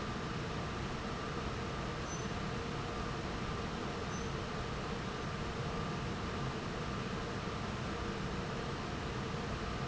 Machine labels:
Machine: fan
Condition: normal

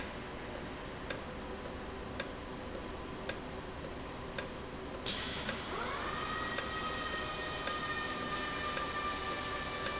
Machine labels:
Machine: valve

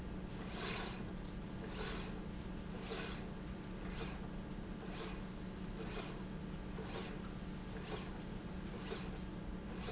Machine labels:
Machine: slide rail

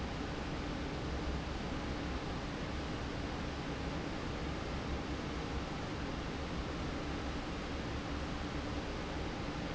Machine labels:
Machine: fan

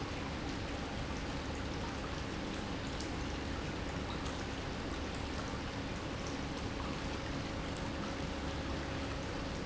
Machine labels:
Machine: pump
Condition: normal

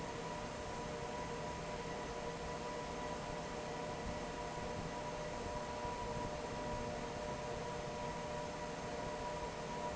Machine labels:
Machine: fan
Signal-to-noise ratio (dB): 0 dB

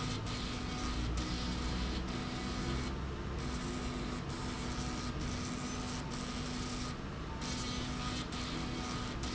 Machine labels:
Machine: slide rail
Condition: abnormal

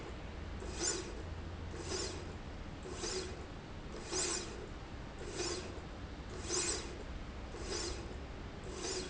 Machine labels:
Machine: slide rail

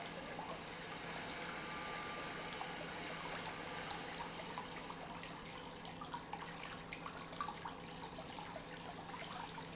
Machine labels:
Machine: pump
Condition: normal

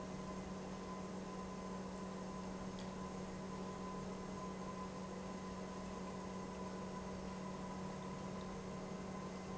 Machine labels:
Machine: pump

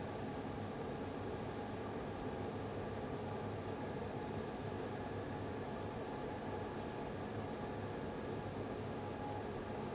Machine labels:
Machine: fan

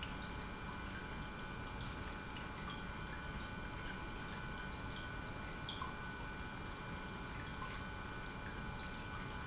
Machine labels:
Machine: pump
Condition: normal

